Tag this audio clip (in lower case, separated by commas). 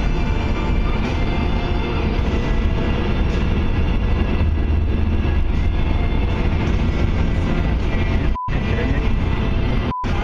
music, speech